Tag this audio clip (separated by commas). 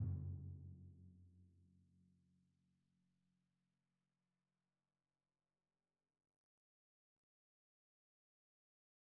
Percussion, Drum, Musical instrument, Music